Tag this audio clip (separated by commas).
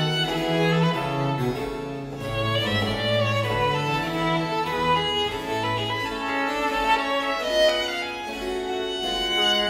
Music, Musical instrument, fiddle